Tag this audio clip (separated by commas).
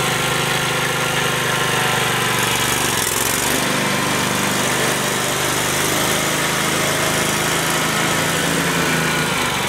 lawn mowing, Power tool, Lawn mower